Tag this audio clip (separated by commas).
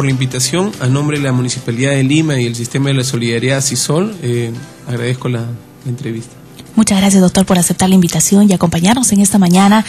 Speech, Music